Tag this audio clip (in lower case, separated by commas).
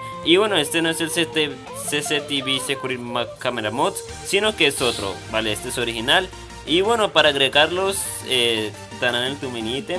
speech, music